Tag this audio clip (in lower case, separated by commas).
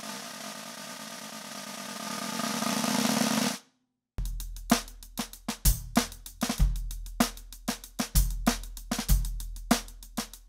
playing snare drum